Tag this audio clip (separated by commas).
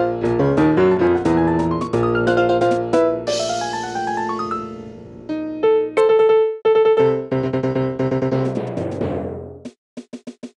Music, Percussion